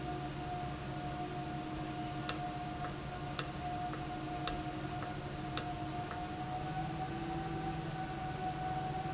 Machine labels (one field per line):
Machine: valve